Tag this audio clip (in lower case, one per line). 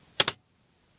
typing
computer keyboard
home sounds